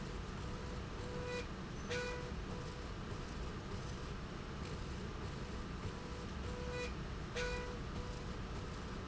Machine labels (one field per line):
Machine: slide rail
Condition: normal